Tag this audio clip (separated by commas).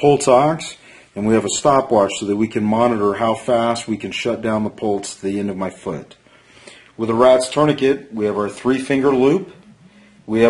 Speech